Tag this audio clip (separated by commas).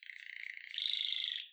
Bird, Wild animals, Animal, Chirp, bird call